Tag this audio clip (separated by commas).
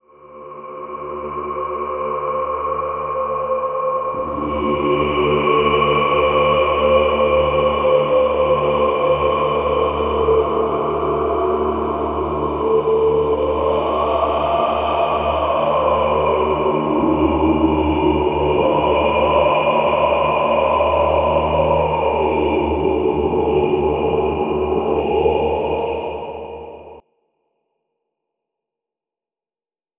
Singing, Human voice